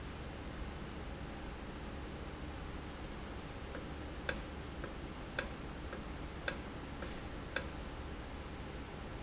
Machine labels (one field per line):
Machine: valve